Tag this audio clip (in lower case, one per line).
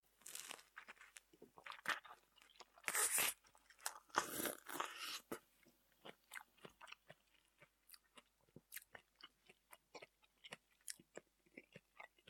mastication